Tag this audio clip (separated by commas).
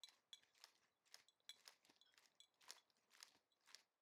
Cat, Domestic animals, Animal